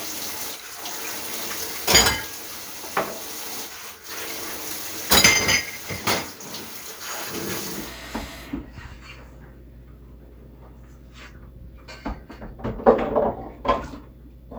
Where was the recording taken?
in a kitchen